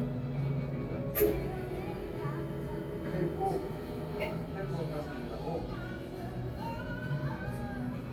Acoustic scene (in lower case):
cafe